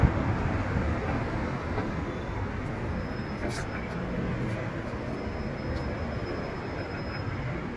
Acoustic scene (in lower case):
street